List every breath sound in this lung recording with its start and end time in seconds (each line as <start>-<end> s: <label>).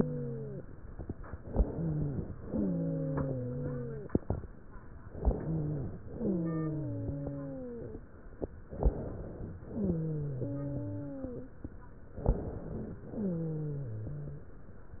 0.00-0.63 s: wheeze
1.40-2.41 s: inhalation
1.40-2.41 s: wheeze
2.39-4.16 s: exhalation
2.47-4.16 s: wheeze
5.10-5.98 s: inhalation
5.10-5.98 s: wheeze
6.09-8.01 s: exhalation
8.67-9.54 s: inhalation
9.70-11.61 s: exhalation
9.70-11.61 s: wheeze
12.22-12.98 s: inhalation
13.02-14.50 s: exhalation
13.09-14.50 s: wheeze